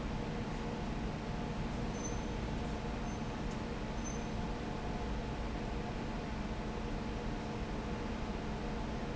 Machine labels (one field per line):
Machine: fan